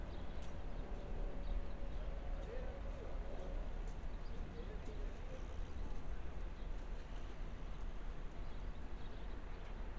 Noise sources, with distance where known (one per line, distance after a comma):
background noise